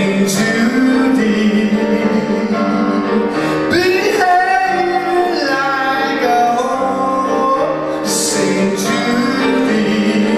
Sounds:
music

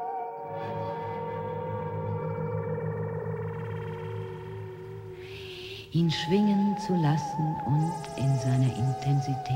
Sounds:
speech

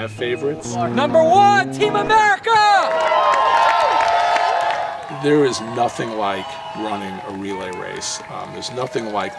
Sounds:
outside, urban or man-made, speech, run, music

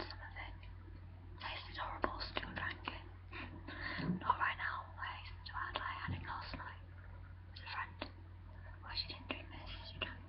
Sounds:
speech

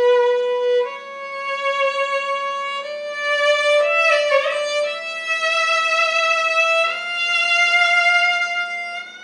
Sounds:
musical instrument, music, fiddle

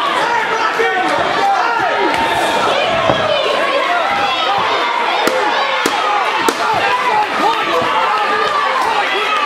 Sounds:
inside a public space, slam, inside a large room or hall, speech

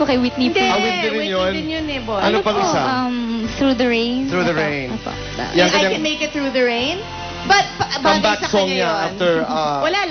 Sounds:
speech, music

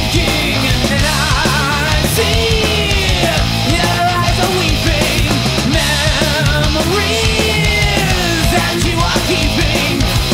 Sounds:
punk rock, music

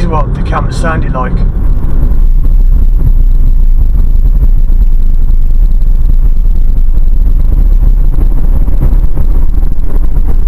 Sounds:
speech, vehicle, car

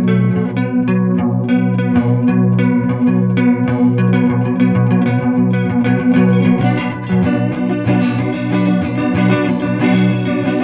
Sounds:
music, distortion

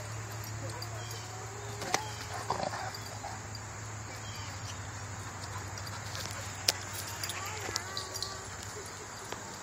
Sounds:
dog, animal, pets, speech, outside, rural or natural

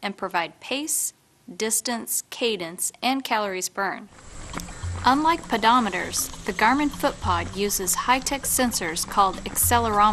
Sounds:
speech, music

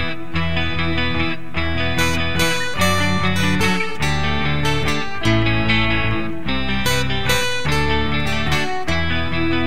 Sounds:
music, plucked string instrument, guitar, acoustic guitar, musical instrument

